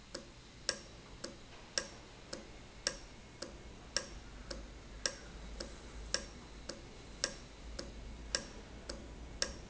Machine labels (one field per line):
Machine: valve